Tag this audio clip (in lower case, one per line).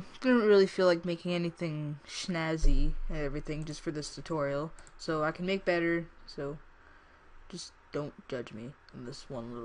speech